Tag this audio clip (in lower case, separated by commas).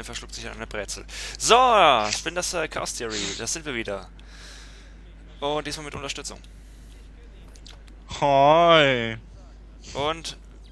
speech